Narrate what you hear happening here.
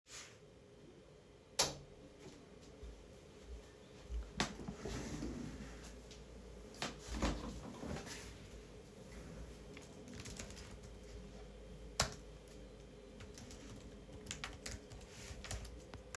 I turned on the light switch, sat on a chair and started typing